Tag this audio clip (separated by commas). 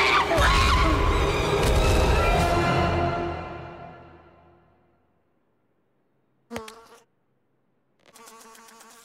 Speech, Music